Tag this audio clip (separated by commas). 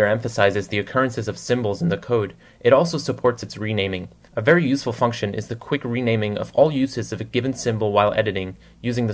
Speech